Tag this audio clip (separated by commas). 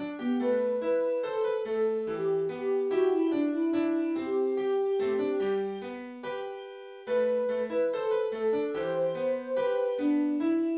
Music, Tender music